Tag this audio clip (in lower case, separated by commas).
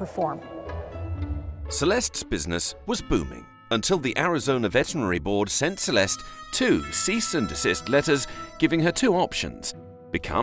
speech, music